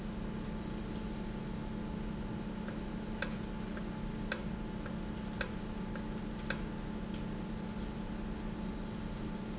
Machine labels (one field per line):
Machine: valve